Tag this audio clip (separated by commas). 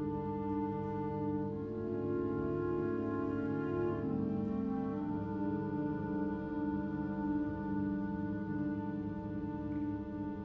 String section